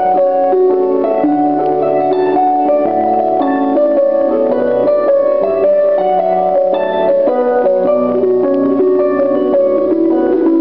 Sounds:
Harp

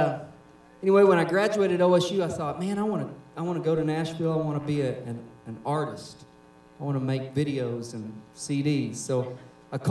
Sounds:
Speech

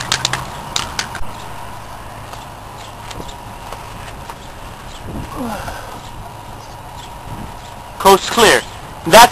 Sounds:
Speech

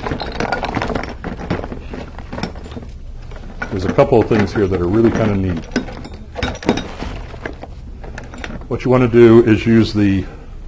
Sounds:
Speech

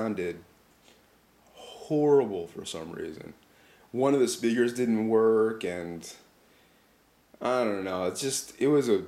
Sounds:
Speech

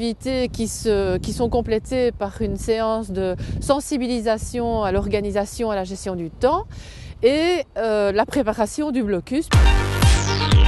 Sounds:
Music, Speech

